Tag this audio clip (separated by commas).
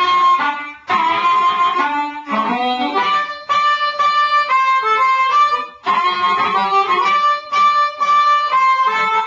woodwind instrument, Harmonica, Music